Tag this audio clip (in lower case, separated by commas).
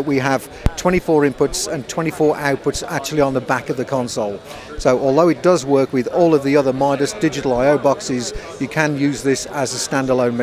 speech